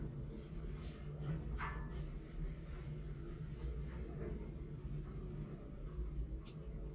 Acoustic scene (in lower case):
elevator